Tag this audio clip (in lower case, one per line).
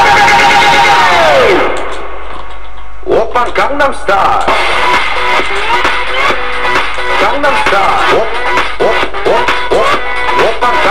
music